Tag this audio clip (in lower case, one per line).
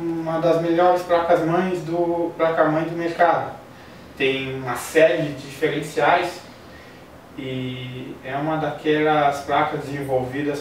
speech